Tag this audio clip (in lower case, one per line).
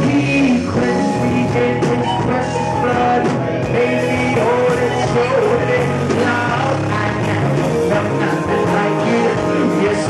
music
soul music